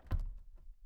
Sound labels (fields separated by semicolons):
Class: window; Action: closing; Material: wooden